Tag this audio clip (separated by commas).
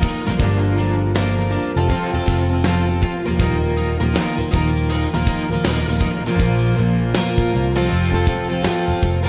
Music